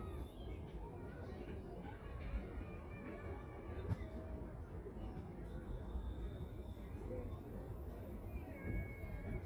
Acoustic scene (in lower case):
residential area